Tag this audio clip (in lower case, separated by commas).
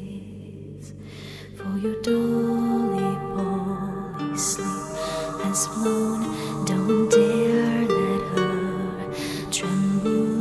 lullaby, music